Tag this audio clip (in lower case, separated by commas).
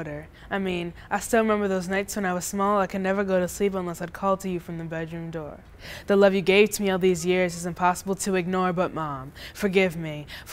speech